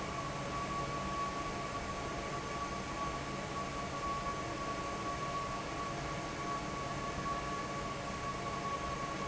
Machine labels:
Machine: fan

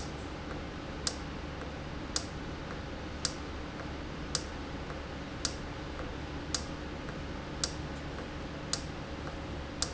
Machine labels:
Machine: valve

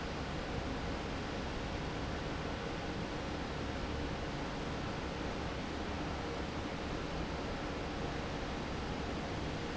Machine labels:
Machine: fan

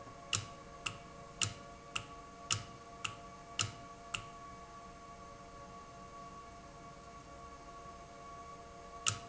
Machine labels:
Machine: valve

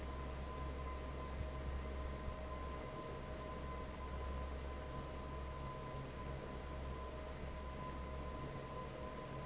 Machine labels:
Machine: fan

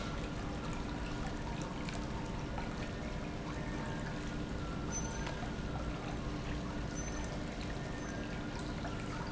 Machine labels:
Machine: pump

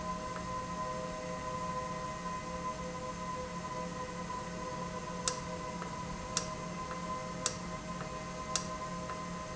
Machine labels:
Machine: valve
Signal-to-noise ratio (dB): -6 dB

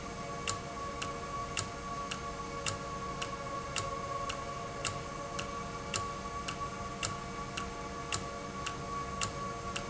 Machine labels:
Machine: valve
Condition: normal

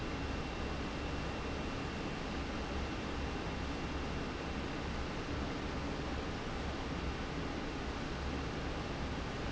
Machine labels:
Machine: fan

